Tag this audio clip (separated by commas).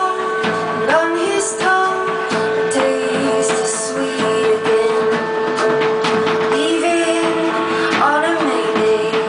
Music